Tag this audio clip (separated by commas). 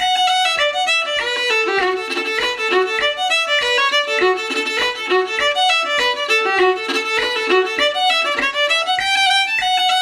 Violin, Music, Musical instrument